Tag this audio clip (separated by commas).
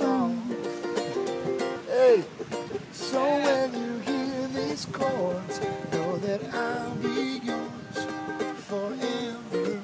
Music